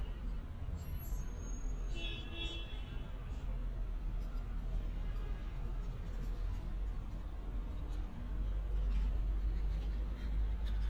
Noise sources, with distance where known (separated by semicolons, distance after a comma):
car horn